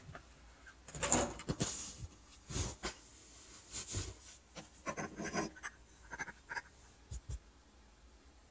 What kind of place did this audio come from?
kitchen